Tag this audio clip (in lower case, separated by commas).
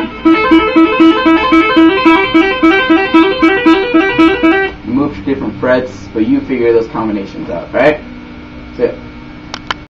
music, speech